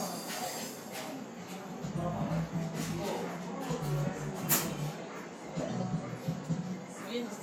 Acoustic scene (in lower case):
cafe